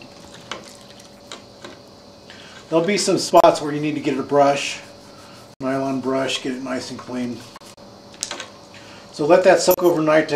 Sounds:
speech

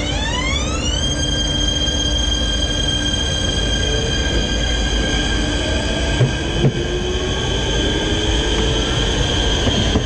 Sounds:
train wheels squealing

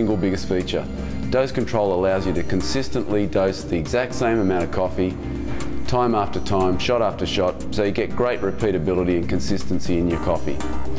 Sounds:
music, speech

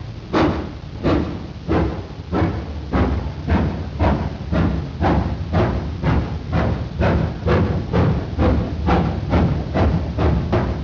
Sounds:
rail transport, train, vehicle

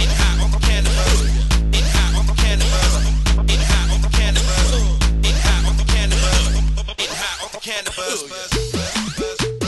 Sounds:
music, electronic music

